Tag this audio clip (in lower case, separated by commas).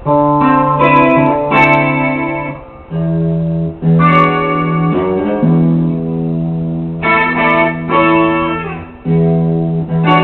musical instrument, guitar, plucked string instrument, music, electric guitar